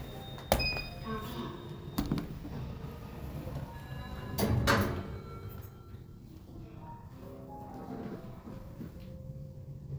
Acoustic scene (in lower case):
elevator